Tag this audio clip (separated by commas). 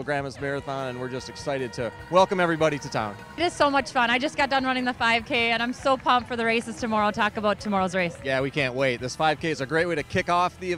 outside, urban or man-made, Speech, Music